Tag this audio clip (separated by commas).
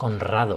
Human voice